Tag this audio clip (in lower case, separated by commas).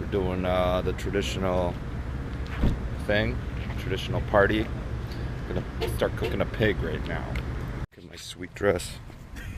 speech, laughter